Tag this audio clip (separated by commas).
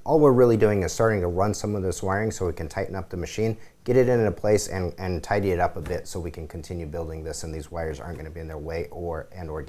Speech